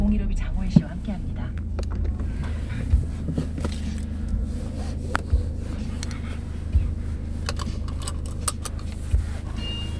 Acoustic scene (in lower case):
car